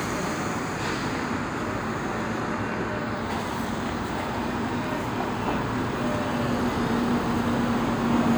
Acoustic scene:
street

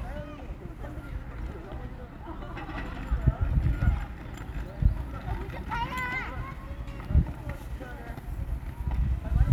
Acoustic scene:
park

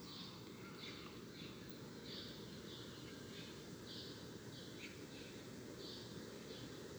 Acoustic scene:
park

